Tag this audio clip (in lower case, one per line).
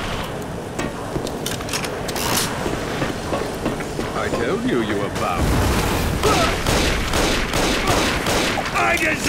speech